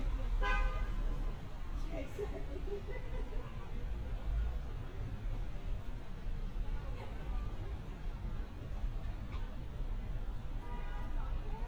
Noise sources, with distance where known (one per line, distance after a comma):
car horn
person or small group talking